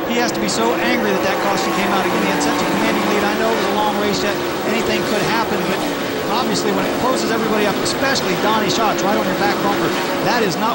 A man talks about a race that is occurring, with the speeding cars also heard